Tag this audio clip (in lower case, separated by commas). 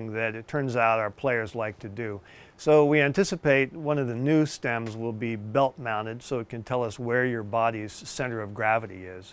speech